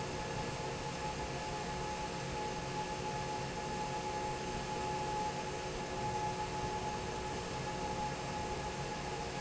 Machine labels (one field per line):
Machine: fan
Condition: normal